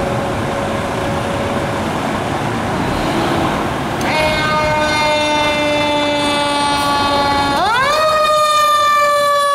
Emergency vehicle sirens